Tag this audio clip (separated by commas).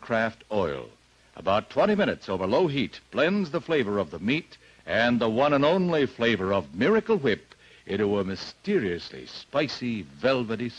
Speech